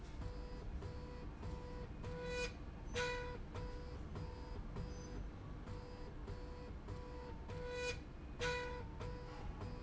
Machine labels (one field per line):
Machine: slide rail